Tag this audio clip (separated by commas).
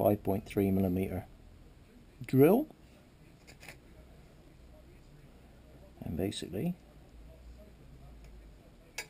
Speech